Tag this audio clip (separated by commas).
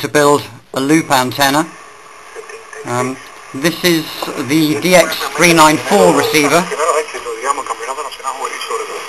Noise, Speech, Radio